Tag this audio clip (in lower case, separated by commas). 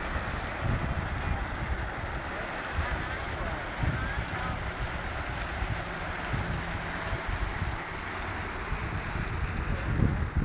speech